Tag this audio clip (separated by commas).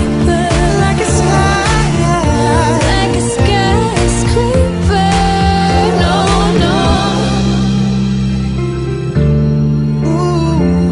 Singing, Music